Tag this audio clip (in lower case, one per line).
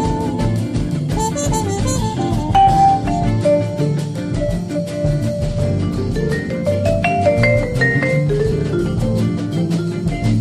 vibraphone